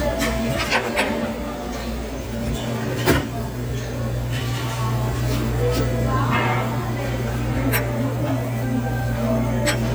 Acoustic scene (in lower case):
restaurant